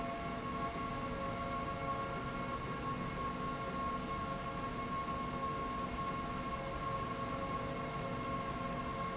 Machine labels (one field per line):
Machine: slide rail